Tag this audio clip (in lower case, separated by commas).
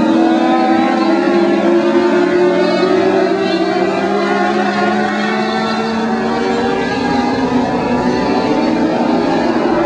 speech